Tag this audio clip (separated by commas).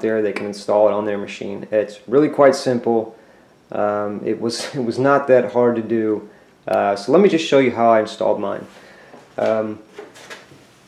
Speech, inside a small room